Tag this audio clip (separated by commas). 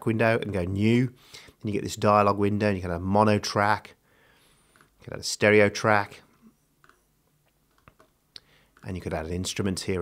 Speech